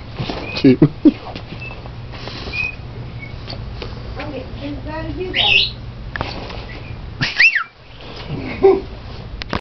A man laughing and talking briefly as footsteps shuffle while a person whistles in the distance followed by a woman speaking then another person whistling